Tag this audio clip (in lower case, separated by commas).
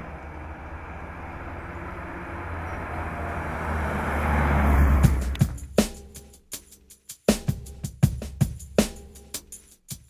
medium engine (mid frequency)